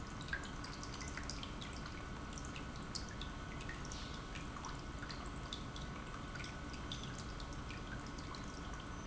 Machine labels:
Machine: pump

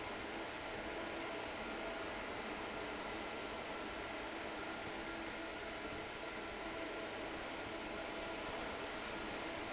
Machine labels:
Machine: fan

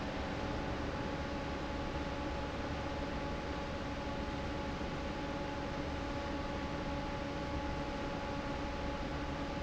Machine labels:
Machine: fan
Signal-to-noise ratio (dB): -6 dB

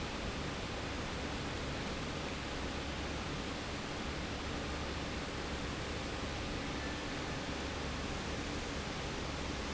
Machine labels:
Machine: pump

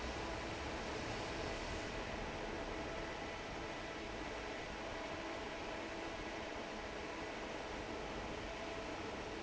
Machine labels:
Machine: fan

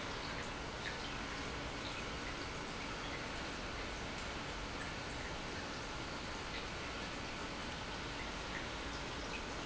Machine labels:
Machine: pump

